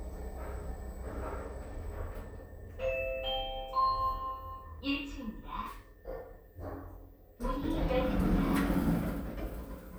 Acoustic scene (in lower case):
elevator